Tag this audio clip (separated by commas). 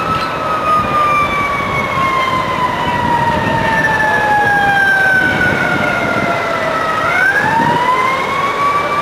fire truck (siren), Emergency vehicle, outside, urban or man-made